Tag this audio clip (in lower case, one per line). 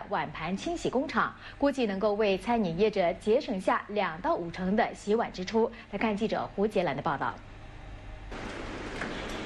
speech